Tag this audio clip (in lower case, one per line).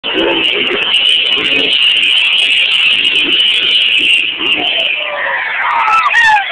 vehicle